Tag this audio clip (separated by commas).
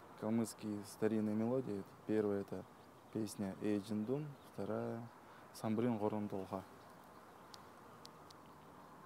Musical instrument, Speech, Violin, Music